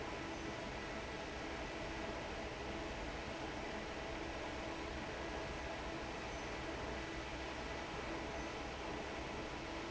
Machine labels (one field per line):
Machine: fan